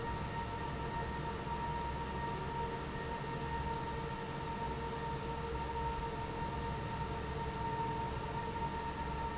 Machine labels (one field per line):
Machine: fan